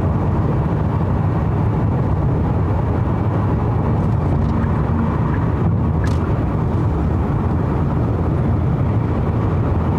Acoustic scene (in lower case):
car